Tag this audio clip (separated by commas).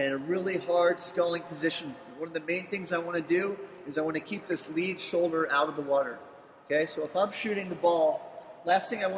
Speech